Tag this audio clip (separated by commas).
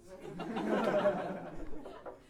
Laughter, Human voice